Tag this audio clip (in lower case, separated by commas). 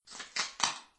telephone, alarm